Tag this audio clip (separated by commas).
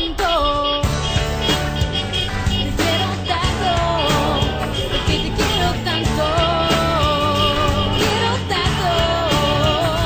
roadway noise, Music, Vehicle, Car